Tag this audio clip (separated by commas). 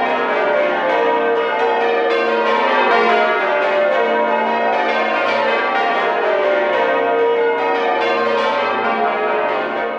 church bell ringing